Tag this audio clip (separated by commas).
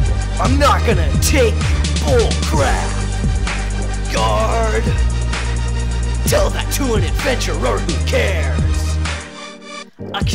Music